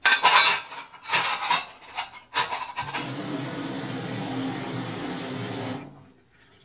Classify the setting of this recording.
kitchen